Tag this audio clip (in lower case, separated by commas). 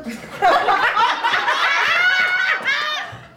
laughter, human voice